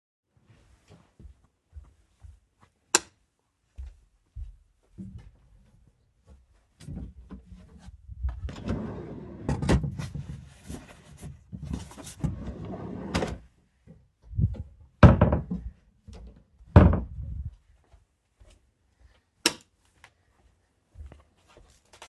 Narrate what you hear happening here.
I walked from the hallway into the bedroom, turned on the light switch, walked to the wardrobe, opened the wardrobe doors and opened a drawer. Searched for a specific t-shirt, took it, closed the drawer and the wardrobe doors, walked to the light switch, turned the light switch off and walked out of the bedroom.